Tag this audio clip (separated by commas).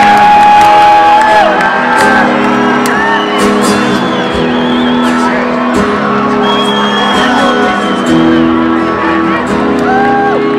Music, inside a public space, Singing